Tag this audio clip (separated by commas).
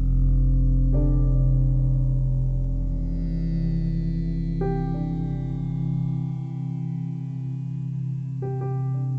Music